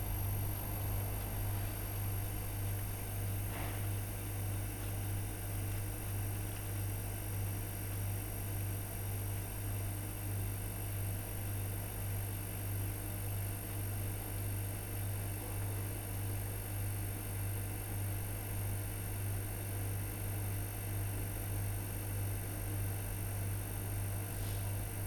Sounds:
Engine

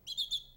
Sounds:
Animal, Bird, Wild animals, tweet, bird call

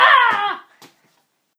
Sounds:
Human voice, Screaming

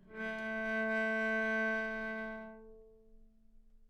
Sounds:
Bowed string instrument, Musical instrument, Music

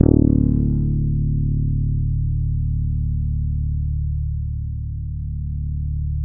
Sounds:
Music, Bass guitar, Plucked string instrument, Guitar, Musical instrument

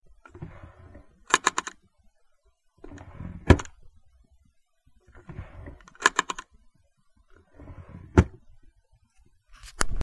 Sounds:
Drawer open or close, home sounds

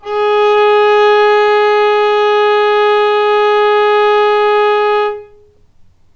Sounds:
Bowed string instrument, Music, Musical instrument

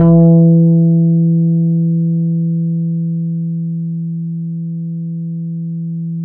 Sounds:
Bass guitar, Musical instrument, Guitar, Plucked string instrument, Music

